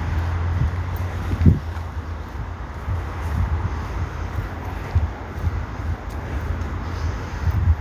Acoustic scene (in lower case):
park